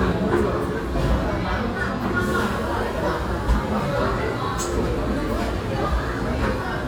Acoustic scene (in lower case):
cafe